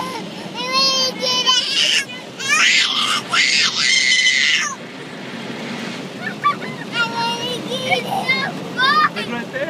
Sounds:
Speech, kid speaking

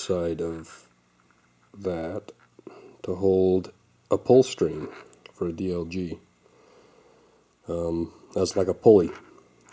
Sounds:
Speech

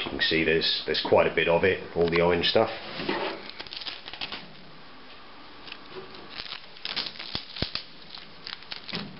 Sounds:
Speech

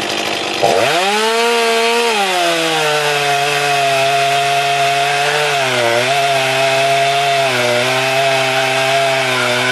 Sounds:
Power tool, Tools

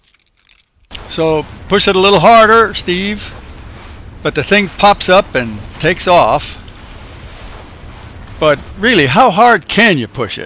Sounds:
Speech, Rustling leaves

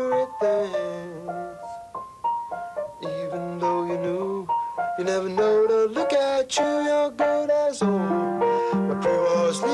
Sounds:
Keyboard (musical), Piano, Music, Musical instrument

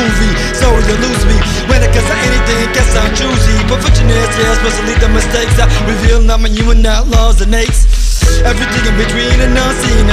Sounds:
Funk, Music

